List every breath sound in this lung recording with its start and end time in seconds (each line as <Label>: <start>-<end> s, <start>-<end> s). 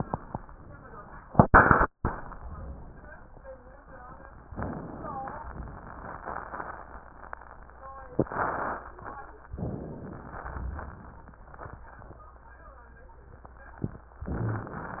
Inhalation: 4.50-5.45 s, 9.51-10.42 s
Exhalation: 5.46-7.94 s, 10.42-12.32 s
Crackles: 5.46-7.94 s, 10.42-12.32 s